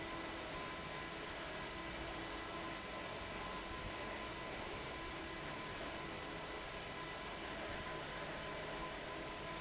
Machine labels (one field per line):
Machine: fan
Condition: abnormal